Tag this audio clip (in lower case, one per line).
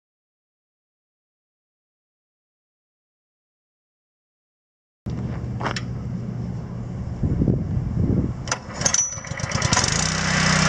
wind
wind noise (microphone)